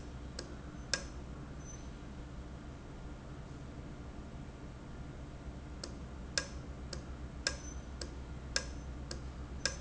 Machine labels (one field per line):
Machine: valve